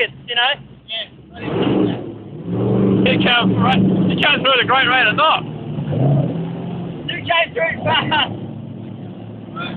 A man speaks and a vehicle revs its engine